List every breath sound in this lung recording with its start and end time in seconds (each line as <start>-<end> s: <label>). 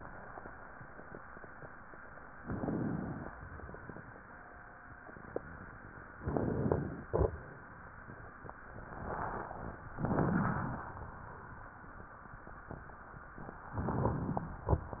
2.42-3.29 s: inhalation
6.23-7.10 s: inhalation
7.08-7.41 s: exhalation
9.98-10.85 s: inhalation
13.77-14.64 s: inhalation